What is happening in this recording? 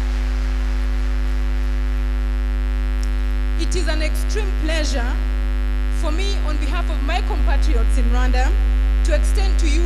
A woman making a speech